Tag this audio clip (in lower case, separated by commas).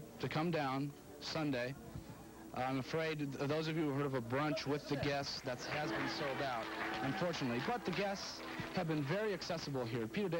music, speech